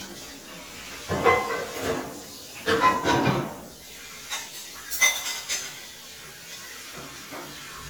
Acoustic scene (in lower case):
kitchen